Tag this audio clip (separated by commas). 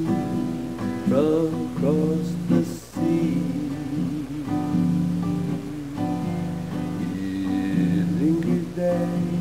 Music